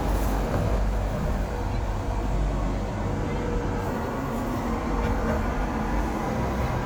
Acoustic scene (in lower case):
street